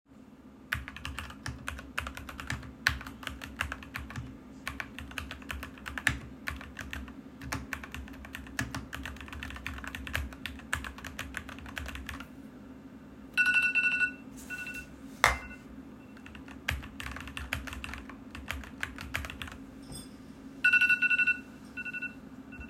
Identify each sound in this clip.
keyboard typing, phone ringing